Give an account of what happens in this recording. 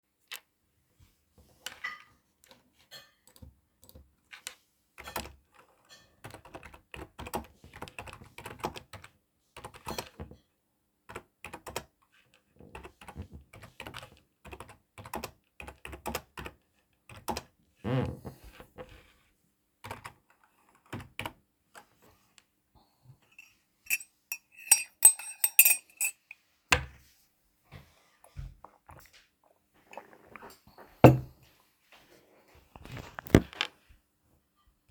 I typed on the keyboard while someone near me was eating. I also drank some water.